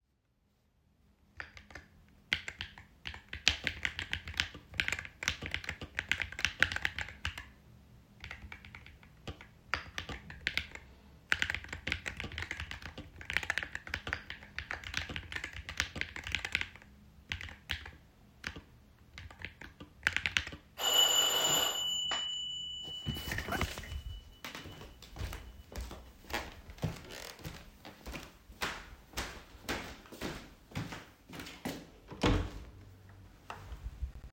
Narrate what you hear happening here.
I typed on my keyboard and the apartment bell rang. I picked up my phone, stood up, walked towards the door and opened it.